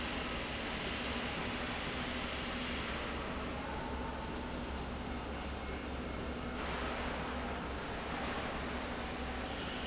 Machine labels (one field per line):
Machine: slide rail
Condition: normal